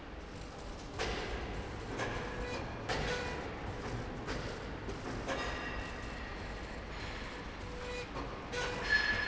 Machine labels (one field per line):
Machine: slide rail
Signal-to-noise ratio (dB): -6 dB